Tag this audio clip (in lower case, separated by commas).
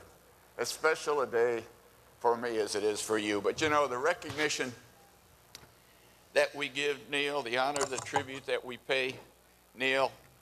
speech, monologue, man speaking